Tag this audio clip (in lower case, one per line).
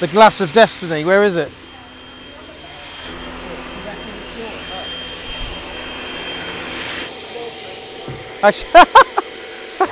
speech